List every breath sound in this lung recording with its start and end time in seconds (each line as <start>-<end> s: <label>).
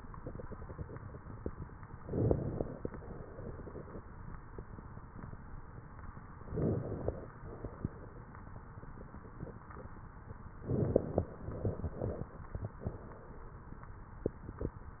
1.99-2.94 s: inhalation
1.99-2.94 s: crackles
2.98-3.93 s: exhalation
6.36-7.31 s: inhalation
6.36-7.31 s: crackles
7.40-8.29 s: exhalation
10.64-11.42 s: inhalation
10.64-11.42 s: crackles
11.48-12.37 s: exhalation